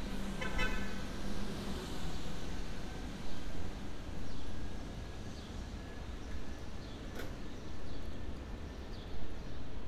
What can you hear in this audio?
car horn